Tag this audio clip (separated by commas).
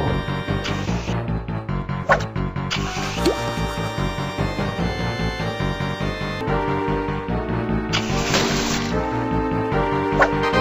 Music